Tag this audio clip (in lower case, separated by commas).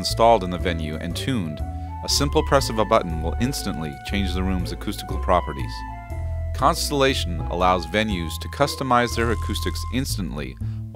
speech, music